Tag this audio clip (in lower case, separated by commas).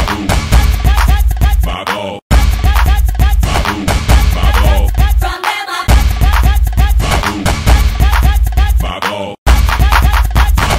music, independent music